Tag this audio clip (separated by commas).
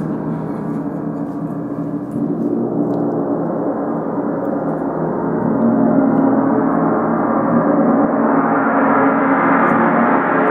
Gong